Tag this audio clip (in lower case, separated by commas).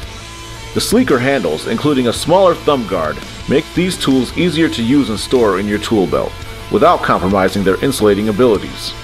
speech, music